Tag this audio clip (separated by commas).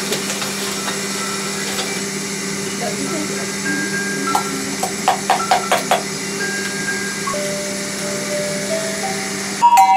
Marimba, Mallet percussion, Glockenspiel